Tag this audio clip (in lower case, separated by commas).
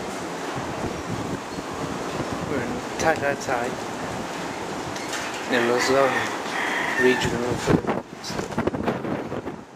speech